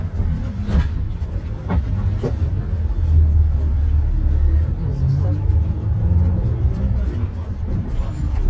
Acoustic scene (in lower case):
bus